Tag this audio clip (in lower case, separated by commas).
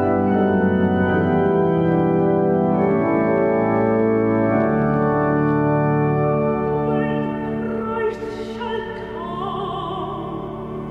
hammond organ, organ